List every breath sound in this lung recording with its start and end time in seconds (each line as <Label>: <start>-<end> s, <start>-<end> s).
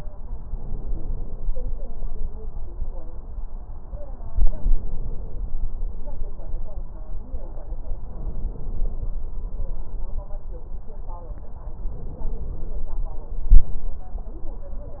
Inhalation: 0.39-1.46 s, 4.40-5.48 s, 8.04-9.12 s, 11.83-12.91 s